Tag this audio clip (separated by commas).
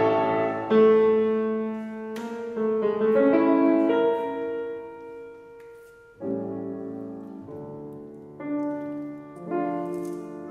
Music, Musical instrument, Piano